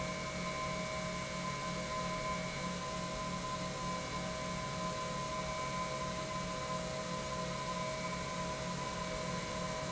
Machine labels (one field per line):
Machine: pump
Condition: normal